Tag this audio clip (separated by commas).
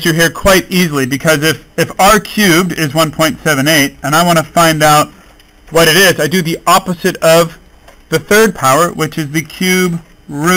inside a small room, Speech